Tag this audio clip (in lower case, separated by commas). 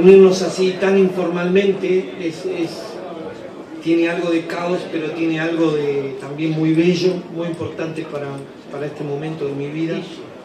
speech